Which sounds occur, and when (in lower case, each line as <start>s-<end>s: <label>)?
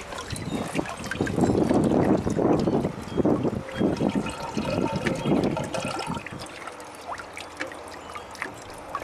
0.0s-9.0s: liquid
0.0s-9.0s: mechanisms
0.0s-9.0s: wind
0.3s-0.8s: wind noise (microphone)
1.0s-3.6s: wind noise (microphone)
3.7s-6.2s: wind noise (microphone)
4.0s-6.7s: water tap
6.3s-6.5s: wind noise (microphone)